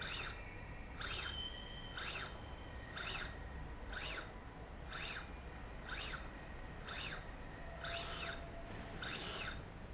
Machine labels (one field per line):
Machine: slide rail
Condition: normal